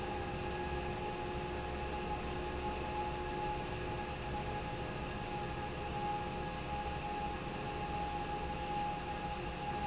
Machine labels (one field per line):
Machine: fan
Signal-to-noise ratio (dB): -6 dB